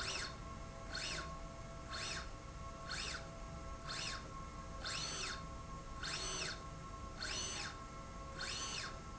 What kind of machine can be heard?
slide rail